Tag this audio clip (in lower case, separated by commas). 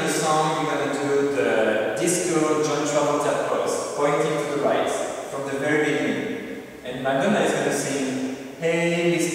speech